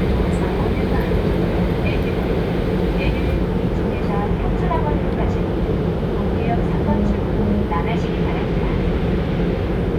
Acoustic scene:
subway train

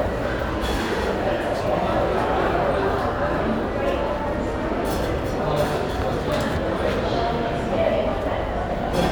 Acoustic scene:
crowded indoor space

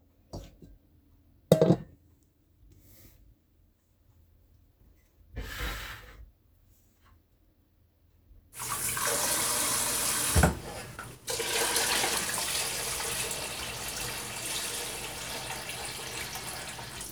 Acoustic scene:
kitchen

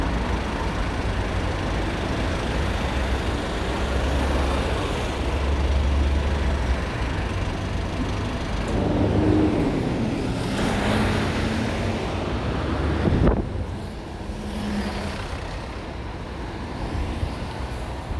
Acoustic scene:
street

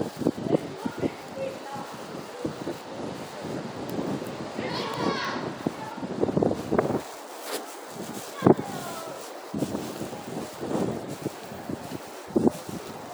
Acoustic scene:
residential area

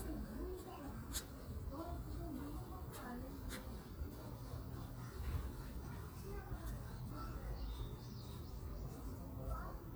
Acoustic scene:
residential area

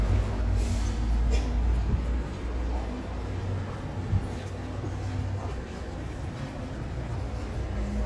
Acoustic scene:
subway station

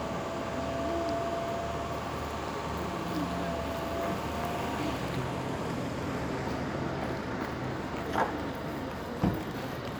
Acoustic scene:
street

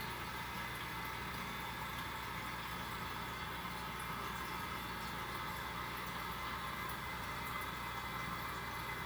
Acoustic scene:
restroom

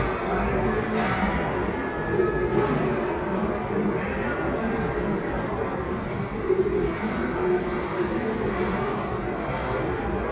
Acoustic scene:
restaurant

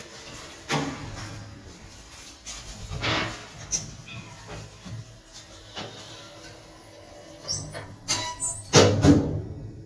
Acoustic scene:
elevator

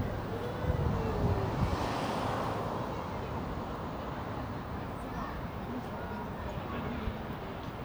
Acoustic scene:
residential area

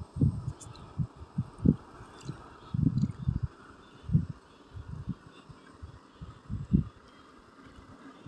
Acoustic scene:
park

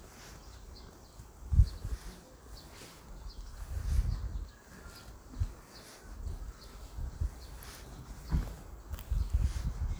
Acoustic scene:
park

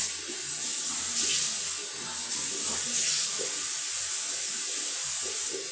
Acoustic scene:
restroom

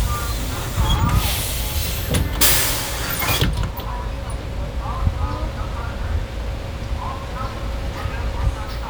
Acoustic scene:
street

